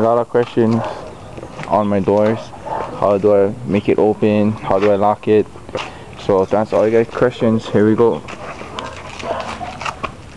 Man speaking with dogs barking in the background